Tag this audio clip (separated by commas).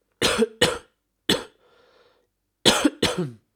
Respiratory sounds, Cough